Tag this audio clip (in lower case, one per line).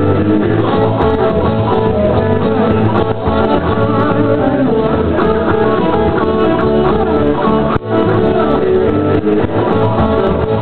guitar
strum
music
musical instrument
plucked string instrument